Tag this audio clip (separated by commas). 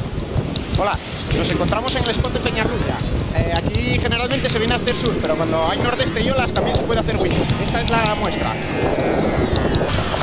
Speech, Music